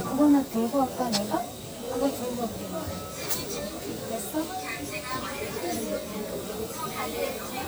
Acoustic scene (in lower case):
crowded indoor space